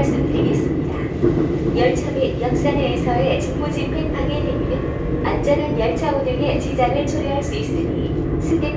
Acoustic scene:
subway train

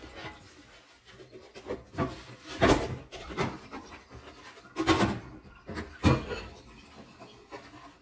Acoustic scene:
kitchen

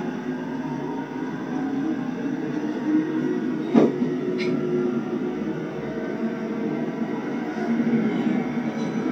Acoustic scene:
subway train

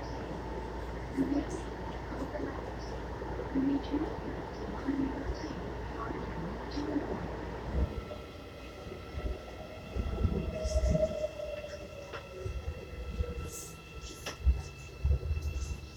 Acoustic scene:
subway train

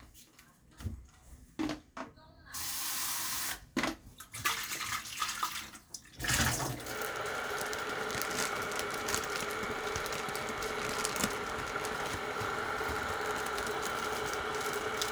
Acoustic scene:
kitchen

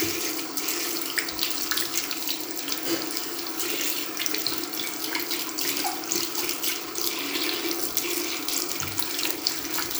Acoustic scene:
restroom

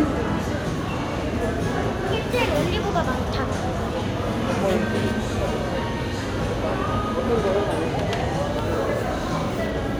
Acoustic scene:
crowded indoor space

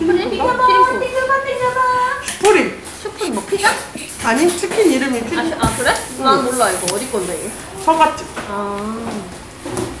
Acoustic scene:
crowded indoor space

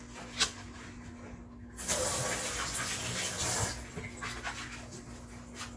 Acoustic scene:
kitchen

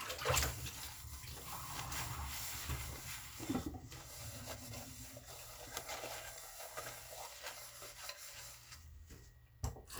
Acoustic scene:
kitchen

